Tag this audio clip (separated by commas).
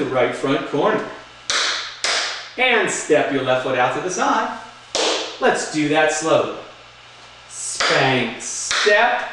Tap, Speech